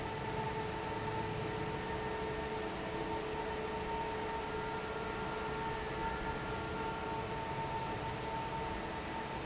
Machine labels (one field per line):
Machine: fan